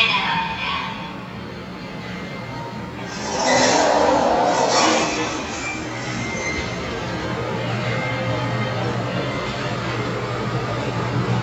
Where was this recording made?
in an elevator